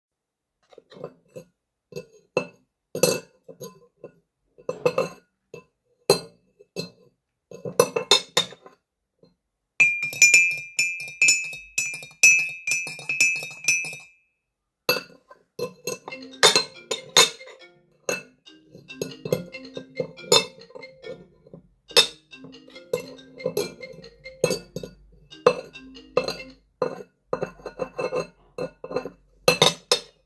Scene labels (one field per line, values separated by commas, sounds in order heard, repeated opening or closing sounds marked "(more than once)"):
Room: kitchen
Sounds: cutlery and dishes, phone ringing